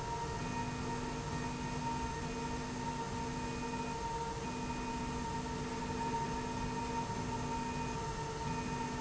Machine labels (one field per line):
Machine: slide rail